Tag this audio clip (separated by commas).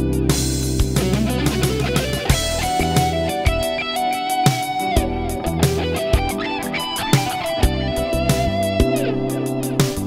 Strum, Plucked string instrument, Musical instrument, Guitar, Music